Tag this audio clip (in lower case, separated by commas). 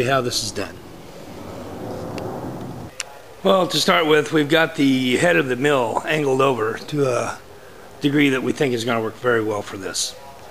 speech